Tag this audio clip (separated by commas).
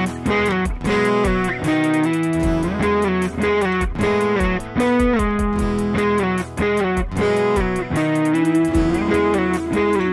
Plucked string instrument, Strum, Guitar, Music, Musical instrument, Electric guitar